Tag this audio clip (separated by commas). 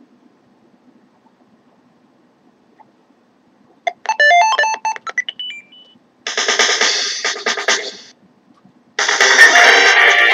Music